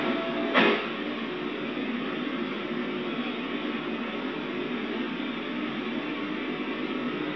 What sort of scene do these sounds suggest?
subway train